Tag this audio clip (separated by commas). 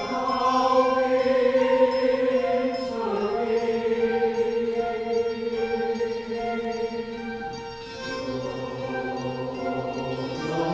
Music